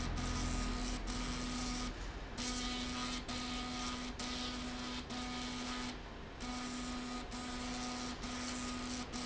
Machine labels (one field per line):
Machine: slide rail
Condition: abnormal